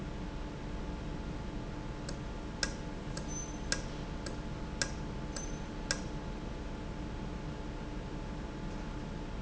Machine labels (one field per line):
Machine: valve